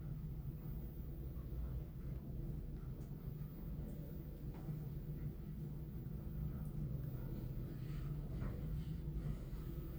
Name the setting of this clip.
elevator